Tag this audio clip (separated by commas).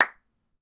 Clapping, Hands